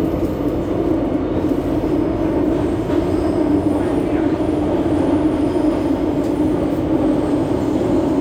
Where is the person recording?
on a subway train